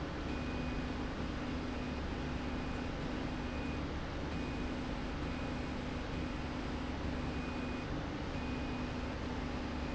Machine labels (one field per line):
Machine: slide rail